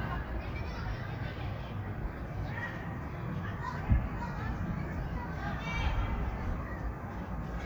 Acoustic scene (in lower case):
park